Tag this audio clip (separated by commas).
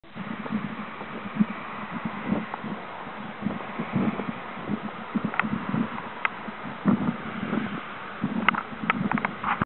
Rustling leaves